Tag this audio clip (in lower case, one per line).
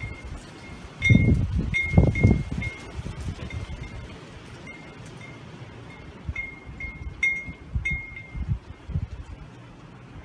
wind chime